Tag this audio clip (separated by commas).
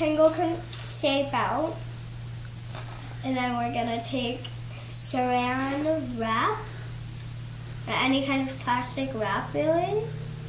Speech